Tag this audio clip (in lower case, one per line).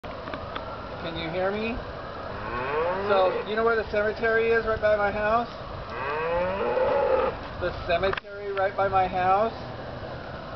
speech